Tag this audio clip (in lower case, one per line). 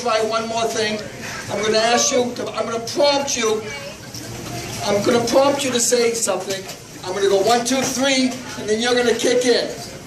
speech